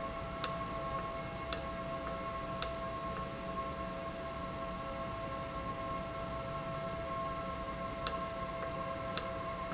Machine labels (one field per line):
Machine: valve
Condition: normal